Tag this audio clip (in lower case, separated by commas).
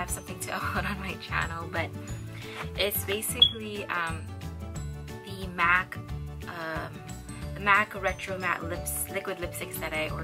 music, speech